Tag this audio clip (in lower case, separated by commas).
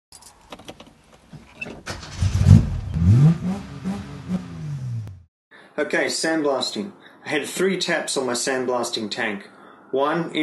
speech, vehicle, car